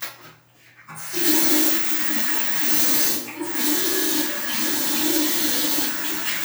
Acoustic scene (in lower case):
restroom